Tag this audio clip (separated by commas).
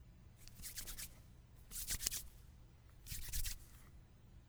Hands